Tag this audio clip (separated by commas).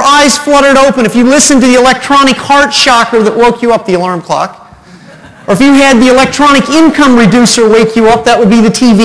Speech